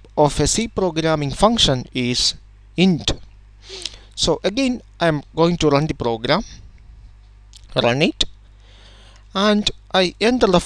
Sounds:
Narration

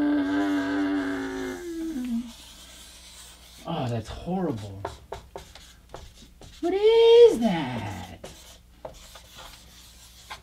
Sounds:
Speech, inside a large room or hall

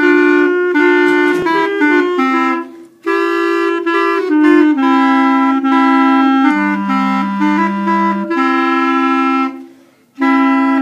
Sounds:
playing clarinet

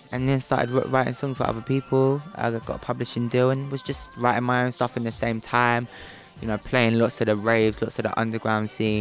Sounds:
Singing, Speech, Music

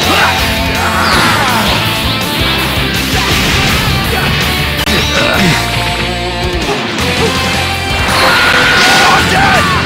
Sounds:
Music

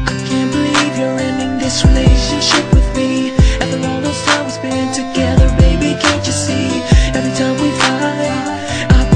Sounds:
Music

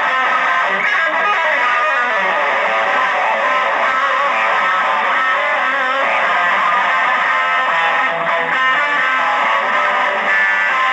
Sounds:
Plucked string instrument, Electric guitar, Guitar, Musical instrument, Music

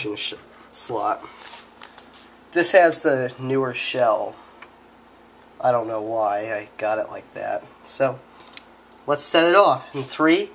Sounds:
Speech

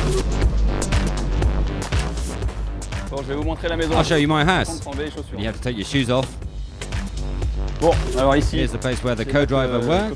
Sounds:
Speech, Music

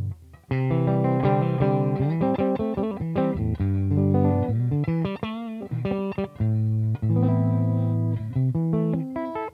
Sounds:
Guitar, Music, Plucked string instrument, Tapping (guitar technique)

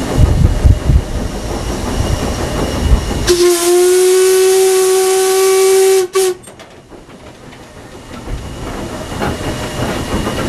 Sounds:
Steam, Steam whistle, Hiss

